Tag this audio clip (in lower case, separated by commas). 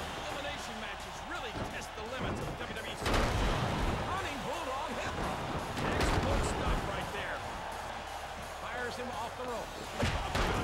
music, speech